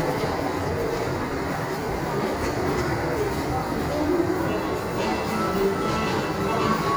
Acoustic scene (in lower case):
subway station